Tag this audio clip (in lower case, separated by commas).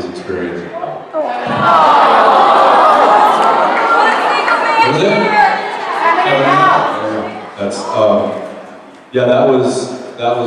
speech